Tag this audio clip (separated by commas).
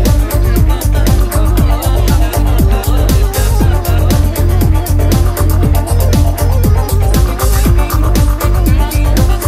Disco